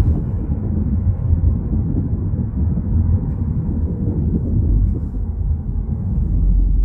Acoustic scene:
car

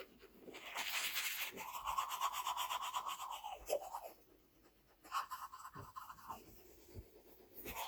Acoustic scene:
restroom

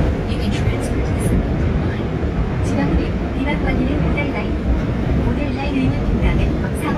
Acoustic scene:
subway train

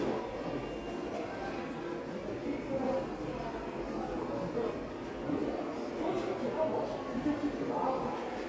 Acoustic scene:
crowded indoor space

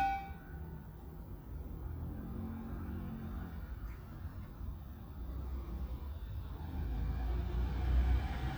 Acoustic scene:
residential area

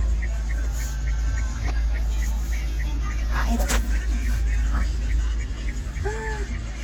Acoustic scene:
car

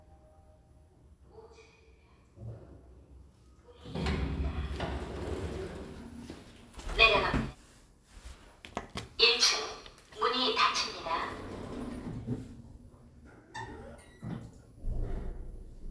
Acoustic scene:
elevator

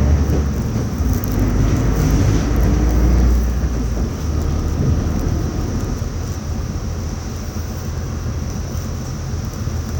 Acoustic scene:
bus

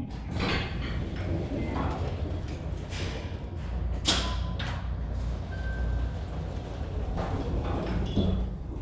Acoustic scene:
elevator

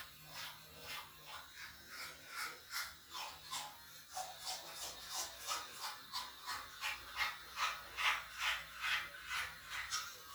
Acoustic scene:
restroom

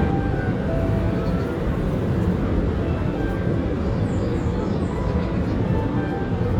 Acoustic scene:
park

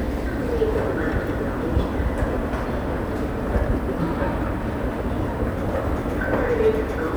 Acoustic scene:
subway station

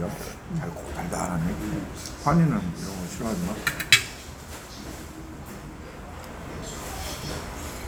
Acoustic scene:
restaurant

